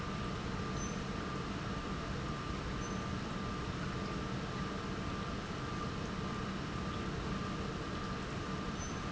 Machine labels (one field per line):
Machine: pump